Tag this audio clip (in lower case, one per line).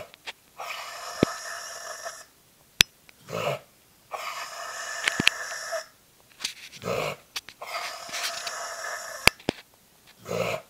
dog
animal
domestic animals